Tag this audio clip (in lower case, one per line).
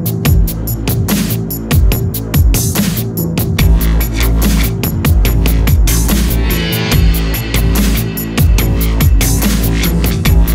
music